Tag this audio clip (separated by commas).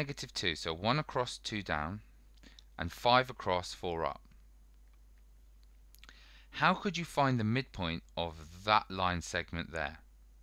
Speech, inside a small room